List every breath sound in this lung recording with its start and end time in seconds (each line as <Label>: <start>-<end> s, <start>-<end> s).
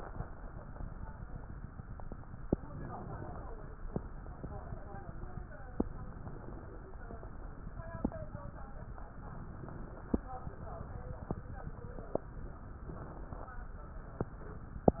Inhalation: 2.55-3.70 s, 6.17-7.32 s, 9.09-10.23 s, 12.75-13.75 s